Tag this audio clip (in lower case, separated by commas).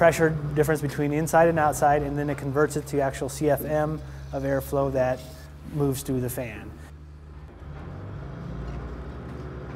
speech